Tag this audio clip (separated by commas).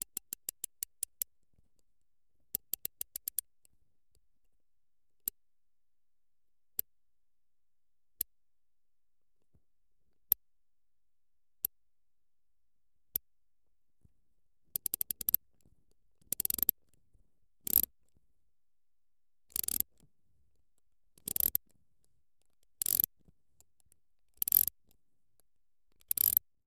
Mechanisms, Ratchet